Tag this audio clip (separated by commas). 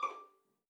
Musical instrument, Bowed string instrument, Music